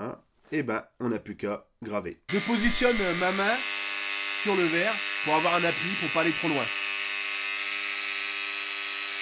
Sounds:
speech

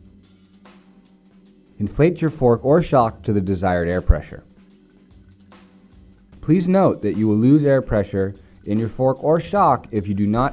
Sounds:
speech, music

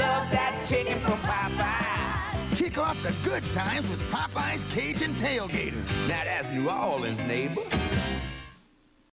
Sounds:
speech, music

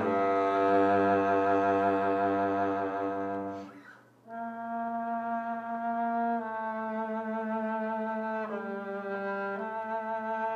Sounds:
musical instrument, cello, music, double bass, bowed string instrument

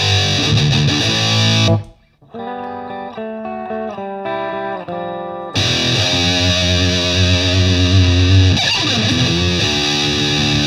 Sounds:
guitar, plucked string instrument, musical instrument, music

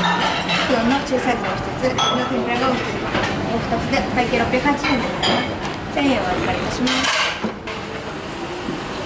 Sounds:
inside a public space, speech

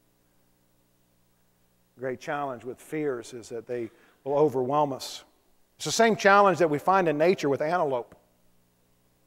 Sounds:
speech

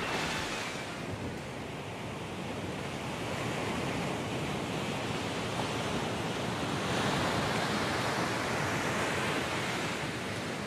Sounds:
rustle

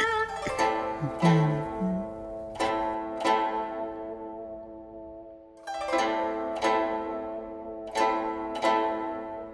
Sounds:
music

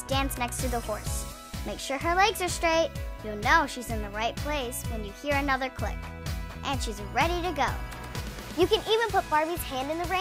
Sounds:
speech, music

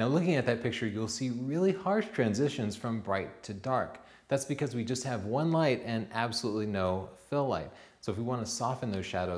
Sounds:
speech

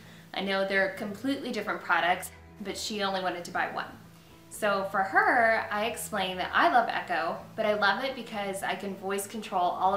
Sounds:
music, speech

